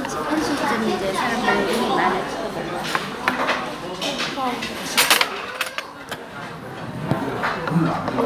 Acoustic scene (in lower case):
restaurant